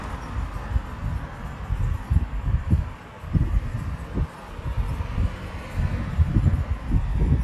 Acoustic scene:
street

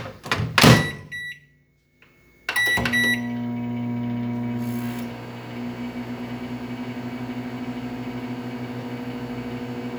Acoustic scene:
kitchen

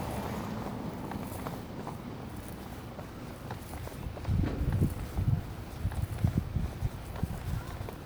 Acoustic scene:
residential area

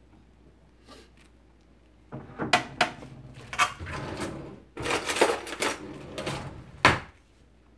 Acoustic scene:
kitchen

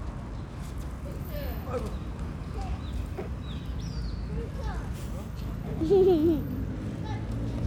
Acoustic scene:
residential area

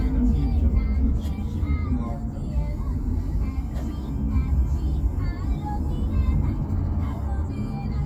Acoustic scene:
car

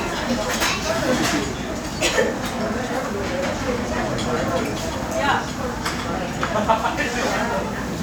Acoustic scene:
restaurant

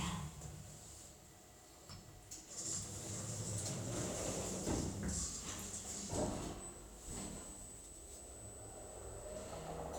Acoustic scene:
elevator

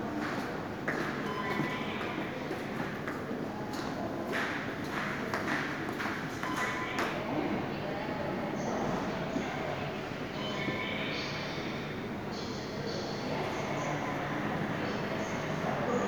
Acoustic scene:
subway station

